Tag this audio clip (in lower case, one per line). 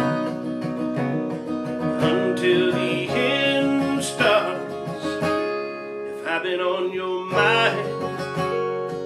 strum
musical instrument
guitar
singing
plucked string instrument